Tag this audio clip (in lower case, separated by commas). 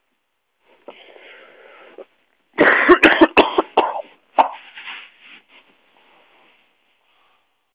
respiratory sounds, cough